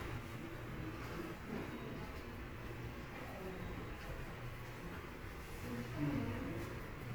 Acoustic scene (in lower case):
subway station